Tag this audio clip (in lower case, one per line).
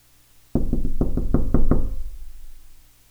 knock
door
domestic sounds